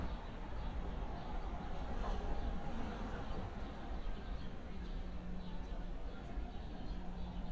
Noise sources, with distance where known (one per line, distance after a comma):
person or small group talking